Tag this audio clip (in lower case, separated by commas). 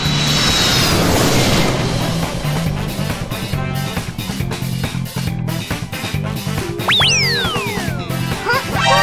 airplane